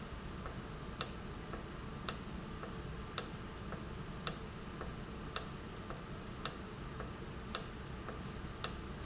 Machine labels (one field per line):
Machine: valve